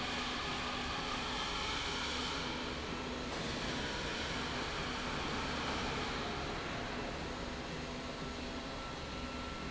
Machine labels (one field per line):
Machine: slide rail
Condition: normal